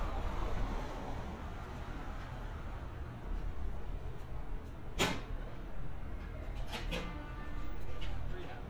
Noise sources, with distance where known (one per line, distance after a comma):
medium-sounding engine, far